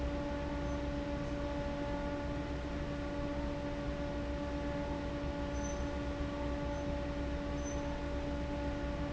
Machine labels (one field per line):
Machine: fan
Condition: abnormal